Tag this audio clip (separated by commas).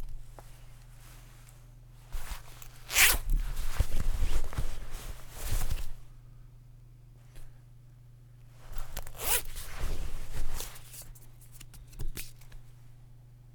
Zipper (clothing), Domestic sounds